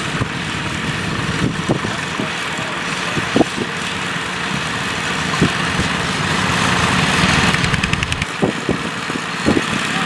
Wind blows and large engines rumble in the distance